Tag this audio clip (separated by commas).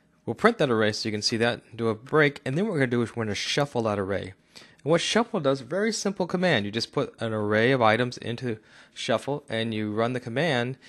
Speech